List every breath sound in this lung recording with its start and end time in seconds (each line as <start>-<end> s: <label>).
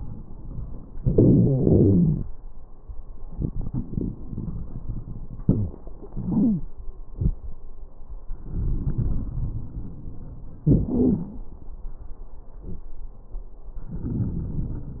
0.94-1.55 s: inhalation
0.98-2.20 s: wheeze
1.57-2.20 s: exhalation
3.32-5.42 s: inhalation
3.37-5.41 s: crackles
5.44-5.73 s: exhalation
5.44-5.73 s: wheeze
6.14-6.66 s: inhalation
6.14-6.66 s: wheeze
7.17-7.37 s: exhalation
8.30-10.65 s: inhalation
8.35-10.63 s: crackles
10.68-10.88 s: inhalation
10.68-10.88 s: crackles
10.92-11.47 s: exhalation
10.92-11.47 s: wheeze
13.96-15.00 s: inhalation
13.96-15.00 s: crackles